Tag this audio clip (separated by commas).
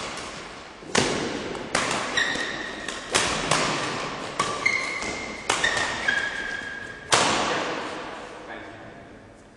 playing badminton